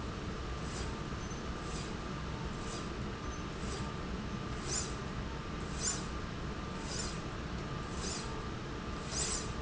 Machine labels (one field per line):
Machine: slide rail